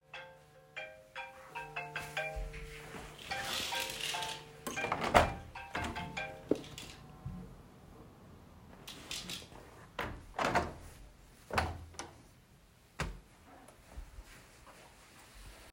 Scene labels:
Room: living room, hallway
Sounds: phone ringing, footsteps, window (more than once)

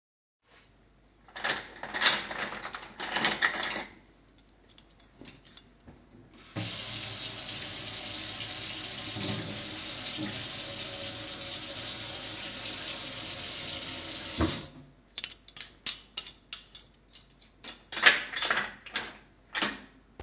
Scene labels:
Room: kitchen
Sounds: cutlery and dishes, running water

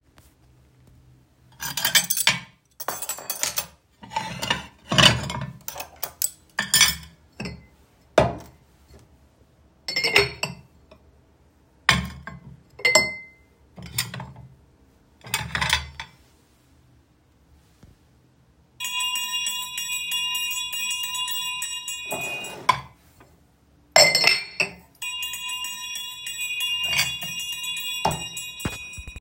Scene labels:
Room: kitchen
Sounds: cutlery and dishes, bell ringing

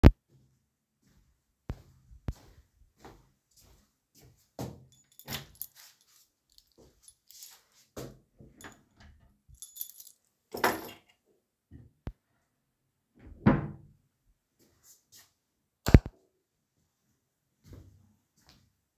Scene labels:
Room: living room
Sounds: footsteps, keys, wardrobe or drawer (more than once), light switch

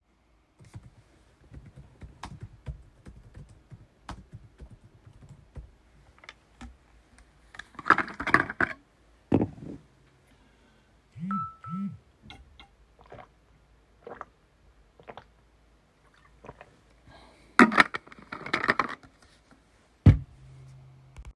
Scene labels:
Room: bedroom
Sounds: keyboard typing, phone ringing

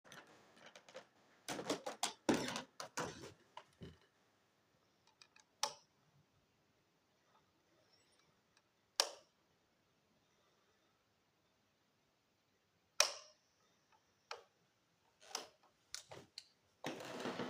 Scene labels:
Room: kitchen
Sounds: footsteps, light switch

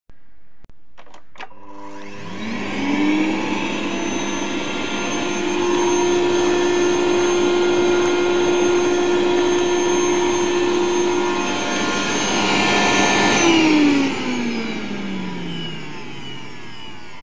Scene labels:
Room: living room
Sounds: vacuum cleaner

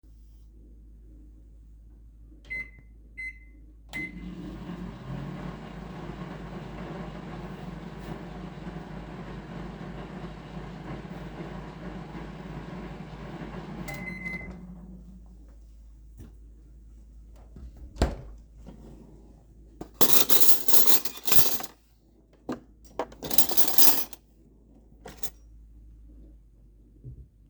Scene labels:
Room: kitchen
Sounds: microwave, wardrobe or drawer, cutlery and dishes

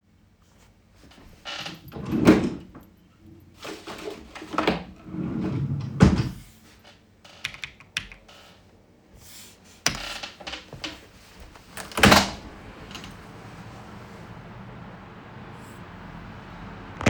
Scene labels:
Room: bedroom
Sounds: wardrobe or drawer (more than once), keyboard typing, window

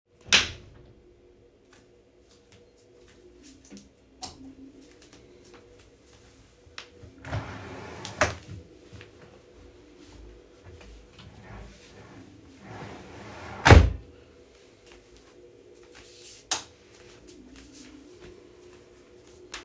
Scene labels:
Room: bedroom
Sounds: light switch, footsteps, wardrobe or drawer (more than once)

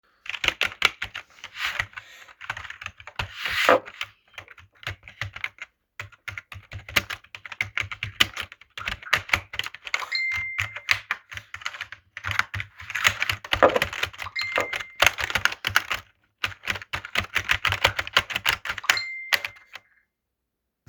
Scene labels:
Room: living room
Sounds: keyboard typing, phone ringing

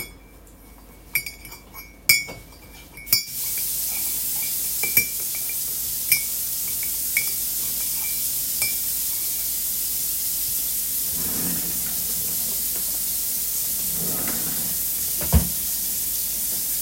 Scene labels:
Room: office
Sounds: cutlery and dishes, running water, wardrobe or drawer (more than once)

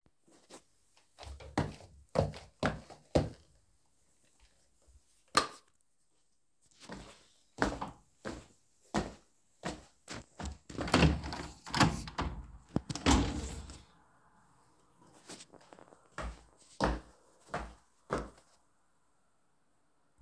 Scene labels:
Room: bedroom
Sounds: footsteps, light switch, door

